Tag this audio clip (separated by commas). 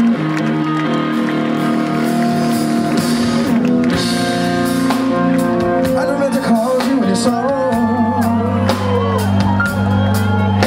Music